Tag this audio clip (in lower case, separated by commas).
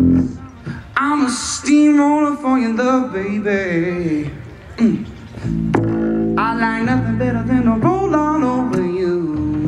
music